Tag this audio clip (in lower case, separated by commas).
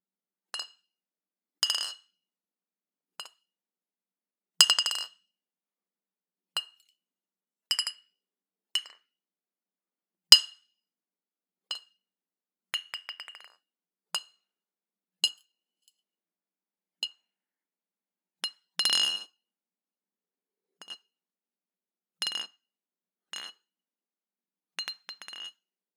glass, chink